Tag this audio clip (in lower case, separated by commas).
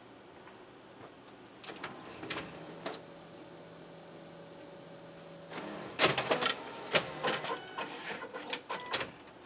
printer